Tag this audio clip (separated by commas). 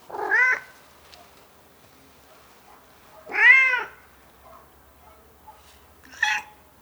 Meow, Cat, Animal, Domestic animals